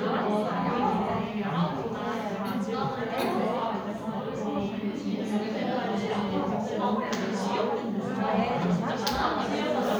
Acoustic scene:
crowded indoor space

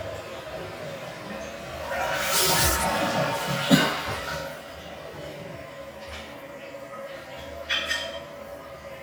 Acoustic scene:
restroom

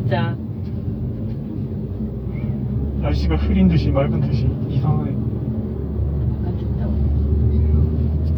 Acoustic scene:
car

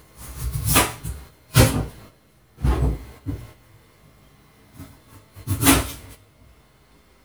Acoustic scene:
kitchen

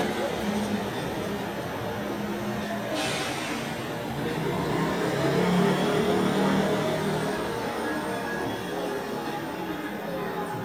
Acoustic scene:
street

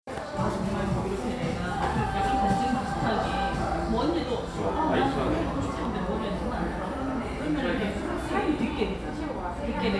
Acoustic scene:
cafe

